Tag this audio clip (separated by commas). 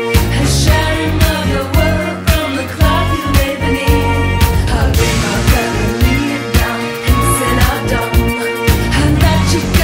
Electronic music, Electronic dance music, Music